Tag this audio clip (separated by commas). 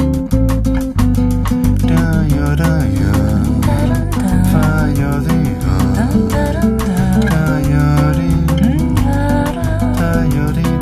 Music